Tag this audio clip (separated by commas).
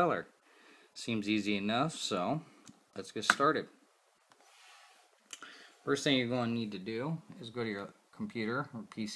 Speech